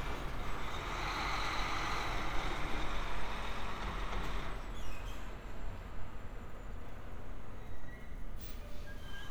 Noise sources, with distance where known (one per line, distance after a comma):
large-sounding engine